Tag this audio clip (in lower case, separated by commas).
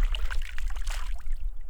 splash, water, liquid